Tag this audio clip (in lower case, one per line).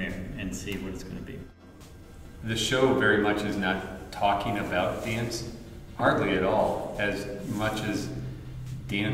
music
speech